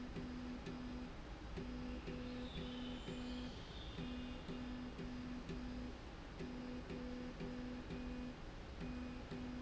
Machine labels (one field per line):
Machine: slide rail